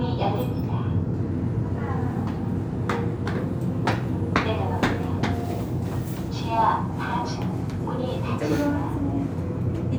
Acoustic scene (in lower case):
elevator